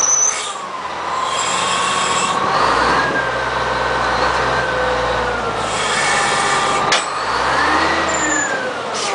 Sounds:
vehicle
truck

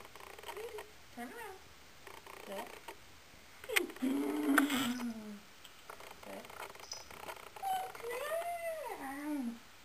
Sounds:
speech

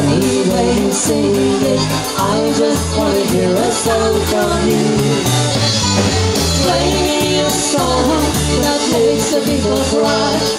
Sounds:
independent music
music

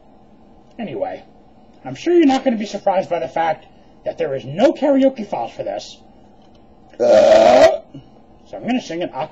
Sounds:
speech

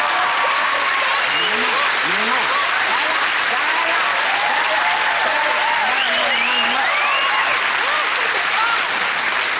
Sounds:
speech

